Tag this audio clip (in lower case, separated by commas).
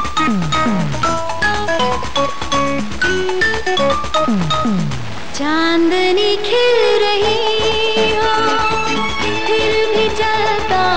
music